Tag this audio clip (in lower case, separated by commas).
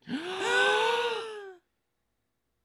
respiratory sounds, breathing, gasp